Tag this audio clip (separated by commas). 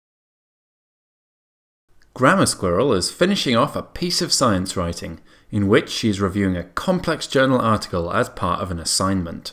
Speech